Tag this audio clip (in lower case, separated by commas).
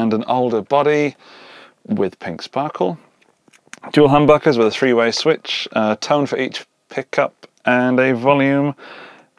speech